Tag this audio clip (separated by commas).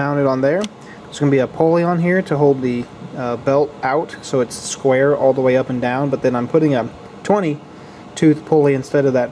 Speech